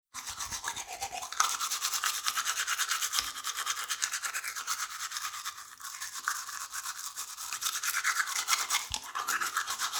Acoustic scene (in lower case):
restroom